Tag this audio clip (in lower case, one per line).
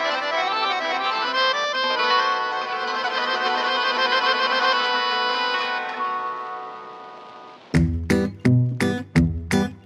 accordion
music